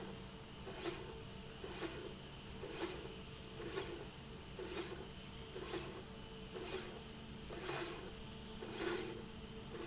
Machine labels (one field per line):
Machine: slide rail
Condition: normal